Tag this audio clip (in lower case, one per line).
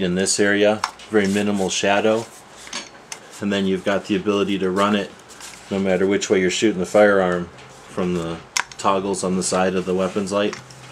speech